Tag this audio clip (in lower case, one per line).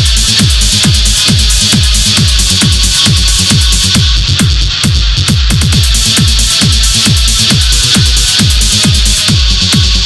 music
techno